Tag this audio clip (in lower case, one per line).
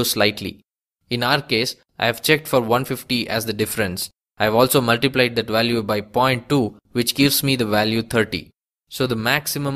speech